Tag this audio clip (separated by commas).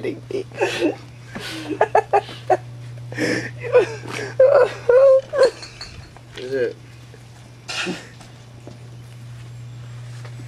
Speech, inside a small room